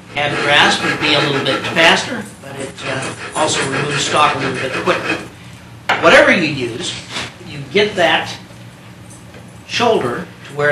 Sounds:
speech, inside a small room, wood

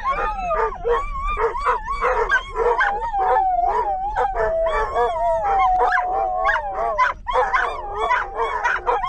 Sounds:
dog whimpering

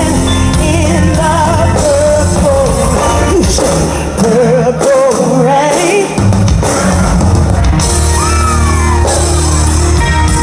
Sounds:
music

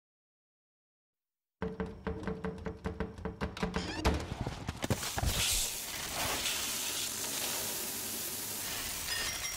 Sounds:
music, inside a small room

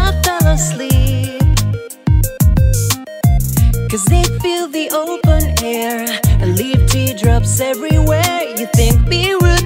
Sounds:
music

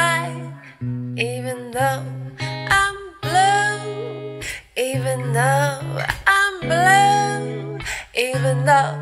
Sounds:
music, jingle (music)

